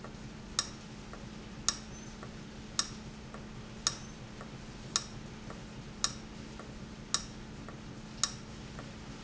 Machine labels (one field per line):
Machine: valve